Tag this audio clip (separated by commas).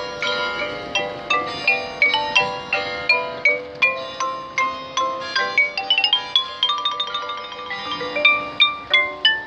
playing glockenspiel